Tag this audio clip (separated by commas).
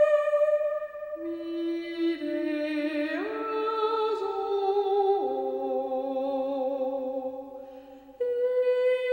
Music